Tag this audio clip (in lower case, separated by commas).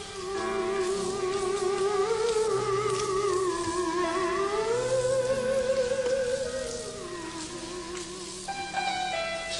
playing theremin